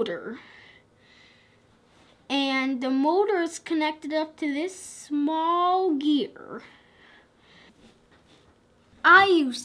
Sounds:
speech

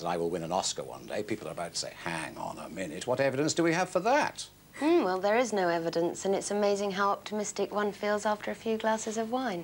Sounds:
speech

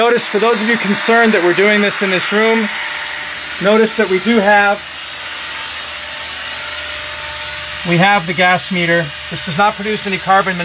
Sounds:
power tool, tools, drill

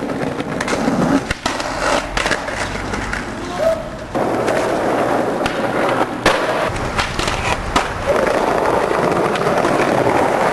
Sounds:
skateboard, skateboarding

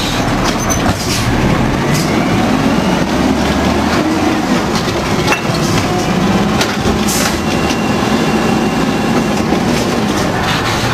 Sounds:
vehicle, truck

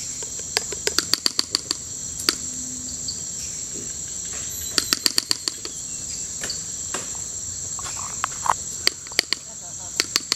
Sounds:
animal, pig

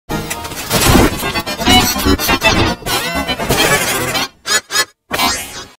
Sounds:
music

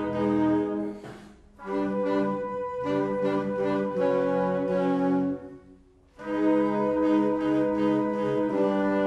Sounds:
music

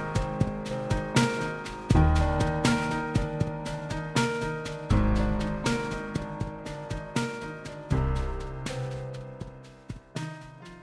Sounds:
music, background music

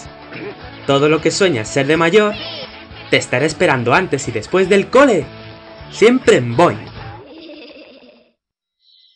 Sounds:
music, speech

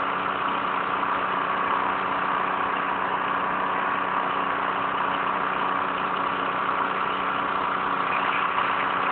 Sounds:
vehicle

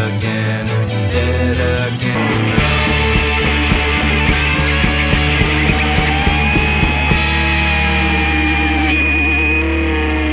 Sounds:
music

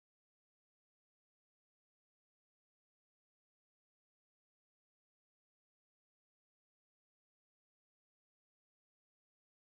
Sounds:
swimming

